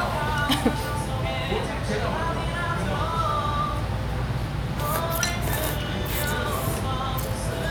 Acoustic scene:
restaurant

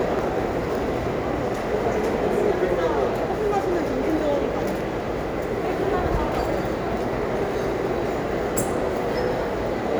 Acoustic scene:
restaurant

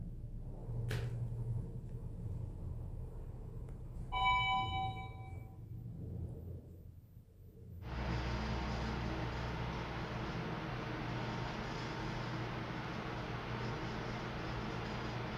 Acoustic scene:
elevator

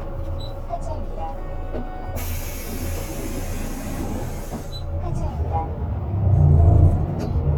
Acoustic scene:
bus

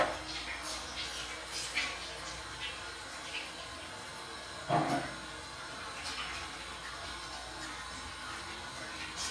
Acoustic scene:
restroom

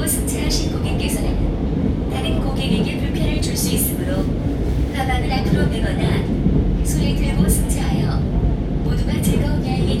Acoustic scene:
subway train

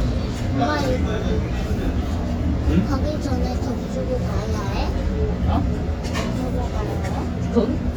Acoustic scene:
restaurant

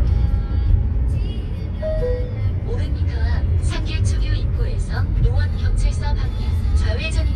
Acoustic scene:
car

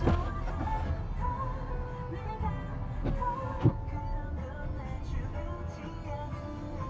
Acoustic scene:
car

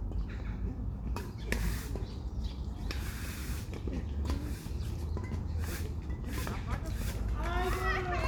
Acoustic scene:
park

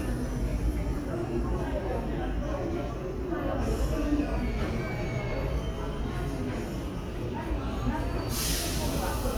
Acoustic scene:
subway station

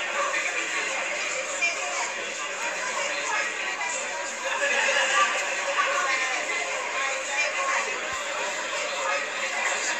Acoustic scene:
crowded indoor space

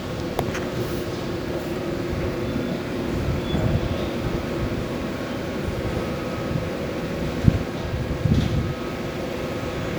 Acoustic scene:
subway station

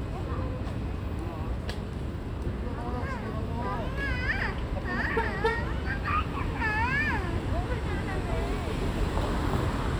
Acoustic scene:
residential area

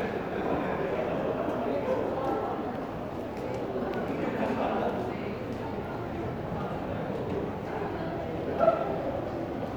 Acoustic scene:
crowded indoor space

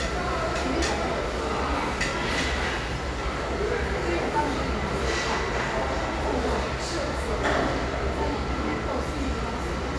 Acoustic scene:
crowded indoor space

